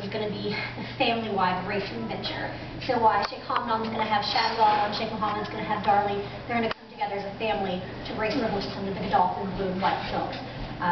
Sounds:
Speech

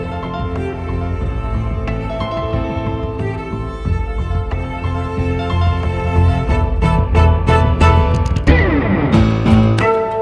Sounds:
Effects unit, Music

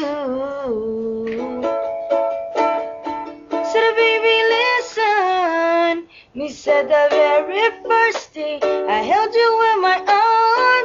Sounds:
Music

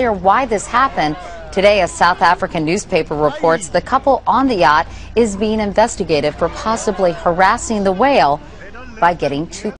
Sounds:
Speech

